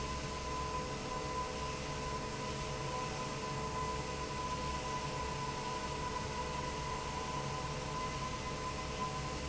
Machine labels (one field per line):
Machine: fan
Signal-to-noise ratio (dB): -6 dB